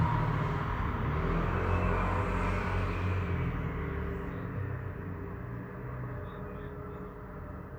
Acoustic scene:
street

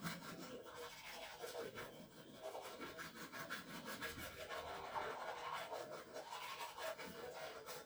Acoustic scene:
restroom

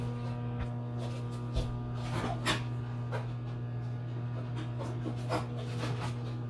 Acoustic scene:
kitchen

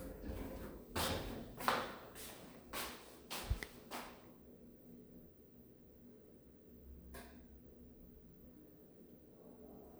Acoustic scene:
elevator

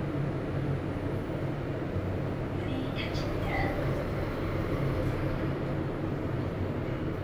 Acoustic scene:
elevator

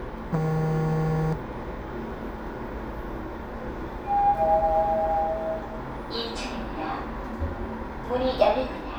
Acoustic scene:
elevator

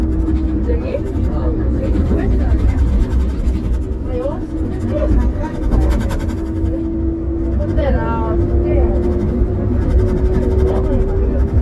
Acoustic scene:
bus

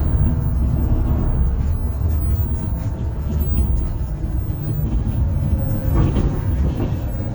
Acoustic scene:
bus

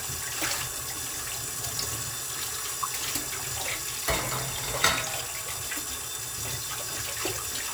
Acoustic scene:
kitchen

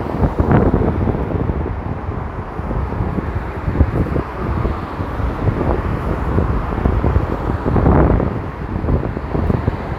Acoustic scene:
street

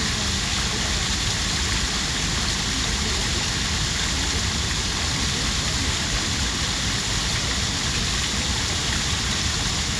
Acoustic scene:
park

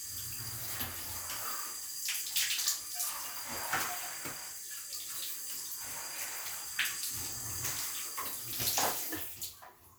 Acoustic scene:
restroom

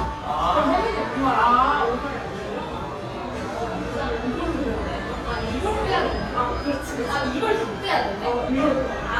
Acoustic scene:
cafe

